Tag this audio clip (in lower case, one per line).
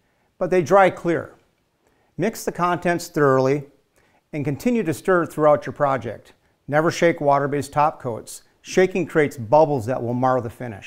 speech